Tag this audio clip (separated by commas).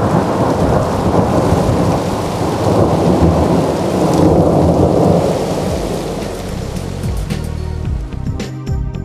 Thunderstorm, Rain, Thunder